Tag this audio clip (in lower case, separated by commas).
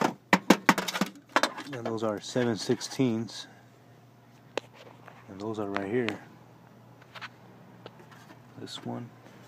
speech